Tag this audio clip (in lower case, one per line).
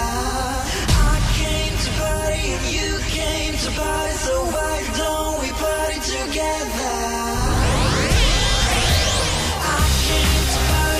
music
sampler